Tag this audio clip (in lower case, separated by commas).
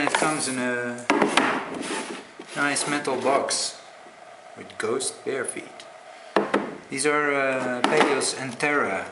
speech, inside a small room